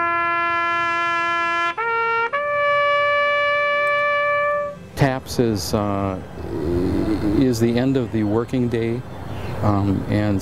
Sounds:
playing bugle

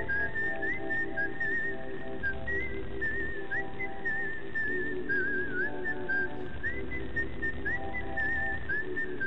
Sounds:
Music, outside, rural or natural

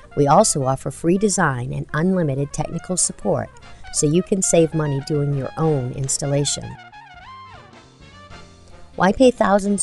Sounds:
Speech, Music

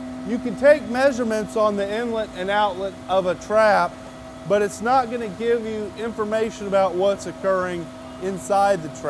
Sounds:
Speech

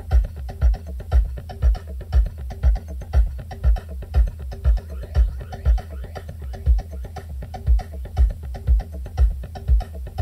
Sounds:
Music

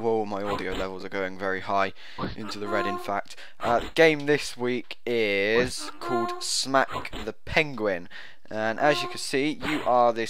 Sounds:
Slap, Speech

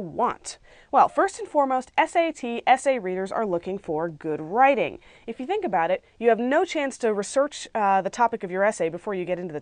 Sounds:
Speech

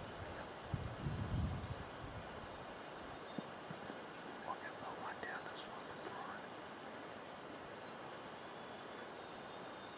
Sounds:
Speech

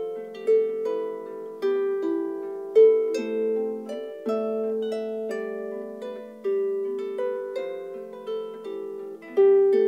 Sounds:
playing harp

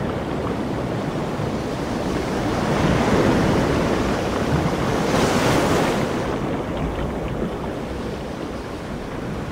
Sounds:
outside, rural or natural

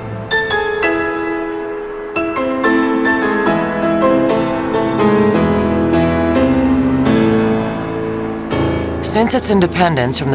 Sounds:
Speech, Music

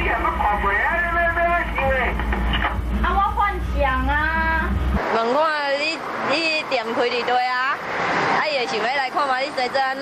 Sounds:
police radio chatter

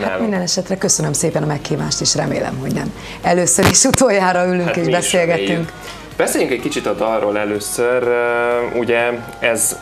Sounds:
Music, Speech

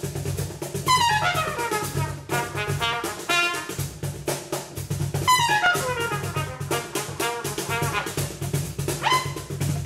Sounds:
Trumpet, Brass instrument, playing trumpet

